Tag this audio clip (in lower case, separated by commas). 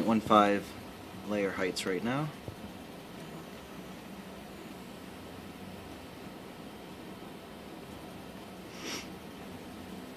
speech